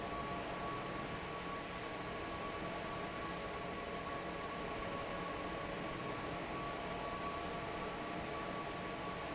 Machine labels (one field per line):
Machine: fan